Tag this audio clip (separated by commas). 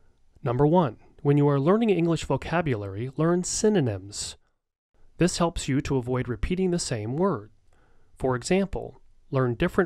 Speech